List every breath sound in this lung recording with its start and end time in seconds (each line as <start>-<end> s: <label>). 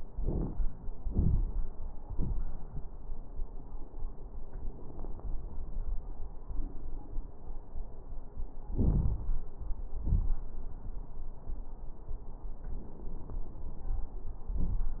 0.10-0.58 s: inhalation
0.10-0.58 s: crackles
1.04-1.57 s: exhalation
1.04-1.57 s: crackles
8.73-9.50 s: inhalation
8.73-9.50 s: crackles
9.99-10.40 s: exhalation
9.99-10.40 s: crackles